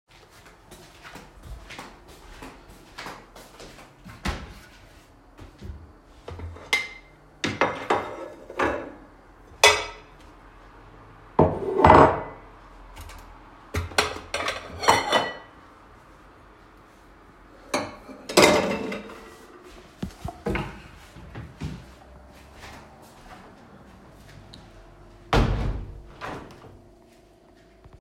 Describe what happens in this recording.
Walked in to the kitchen, opened the cabinet, put washed plates into the cabinet, closed the cabinet, then walked over to the window to close it